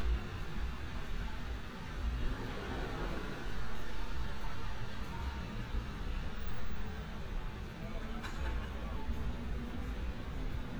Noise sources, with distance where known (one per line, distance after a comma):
person or small group talking